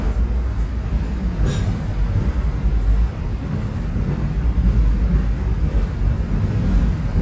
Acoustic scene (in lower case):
subway train